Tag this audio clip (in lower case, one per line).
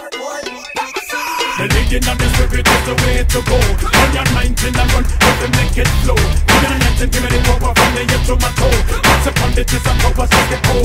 music